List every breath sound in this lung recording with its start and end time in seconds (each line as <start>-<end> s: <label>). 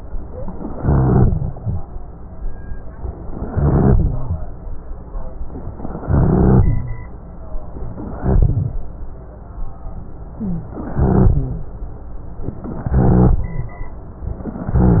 0.76-1.54 s: inhalation
0.76-1.54 s: rhonchi
3.53-4.31 s: inhalation
3.53-4.31 s: rhonchi
6.07-6.85 s: inhalation
6.07-6.85 s: rhonchi
8.18-8.79 s: inhalation
8.18-8.79 s: rhonchi
10.91-11.69 s: inhalation
10.91-11.69 s: rhonchi
12.96-13.74 s: inhalation
12.96-13.74 s: rhonchi